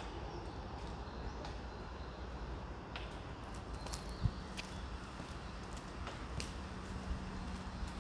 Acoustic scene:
residential area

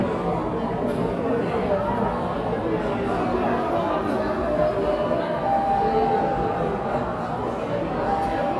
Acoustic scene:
cafe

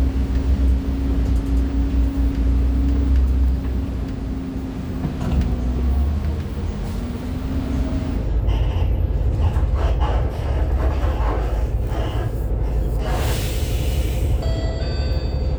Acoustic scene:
bus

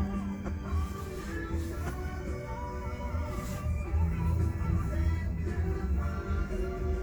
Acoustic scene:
car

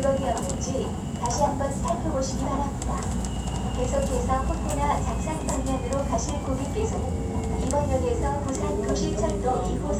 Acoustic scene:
subway train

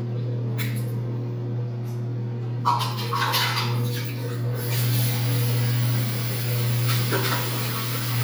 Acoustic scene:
restroom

